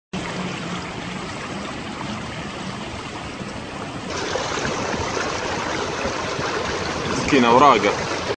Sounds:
Rain

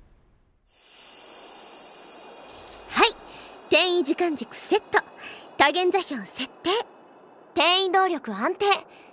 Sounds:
Speech

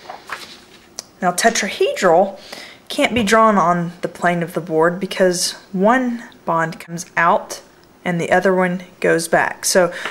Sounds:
Speech, inside a small room

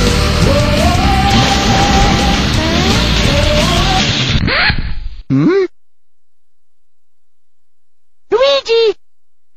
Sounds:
Speech, Music

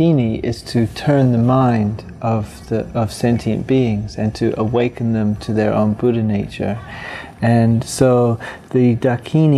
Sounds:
Speech

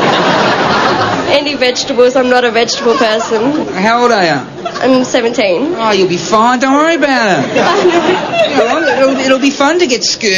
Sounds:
Speech

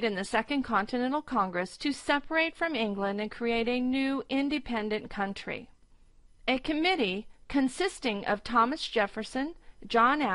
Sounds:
Speech

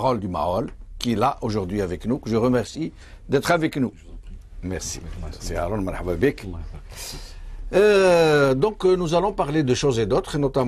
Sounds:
Speech

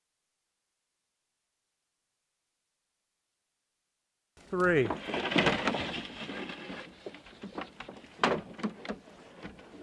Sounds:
Speech

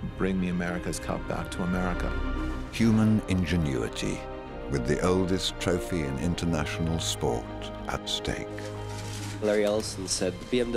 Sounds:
Speech, Music

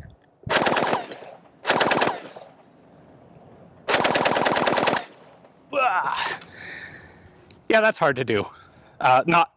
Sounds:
machine gun shooting

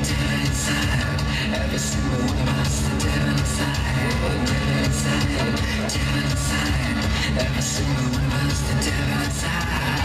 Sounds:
Music

